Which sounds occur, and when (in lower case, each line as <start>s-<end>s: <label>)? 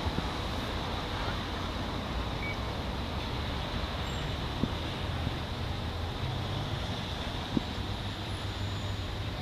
0.0s-9.4s: roadway noise
0.0s-9.4s: wind
2.4s-2.5s: bleep
3.6s-3.9s: wind noise (microphone)
4.0s-4.3s: squeal
4.5s-4.7s: wind noise (microphone)
7.5s-7.6s: wind noise (microphone)